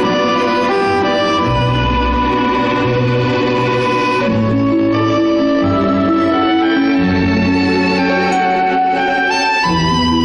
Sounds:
music
soul music
dance music

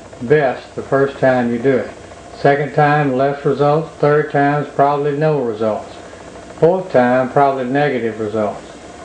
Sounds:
speech

